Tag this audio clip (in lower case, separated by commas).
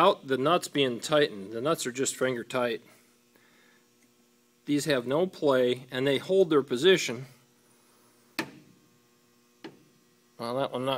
inside a small room, speech